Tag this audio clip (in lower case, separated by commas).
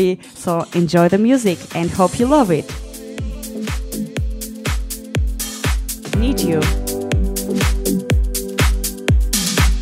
music, speech